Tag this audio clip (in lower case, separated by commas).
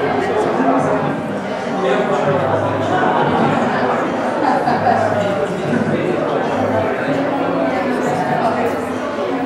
speech, inside a large room or hall